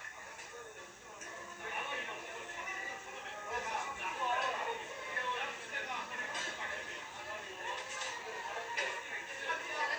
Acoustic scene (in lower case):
restaurant